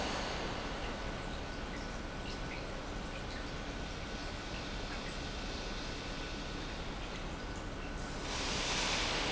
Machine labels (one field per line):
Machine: pump